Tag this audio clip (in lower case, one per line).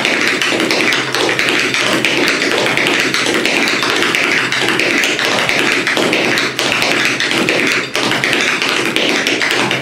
tap dancing